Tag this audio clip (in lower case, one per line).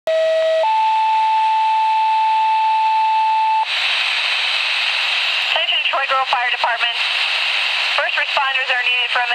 radio